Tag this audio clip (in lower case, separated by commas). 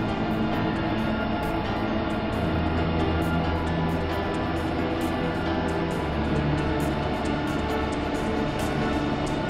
train, vehicle, music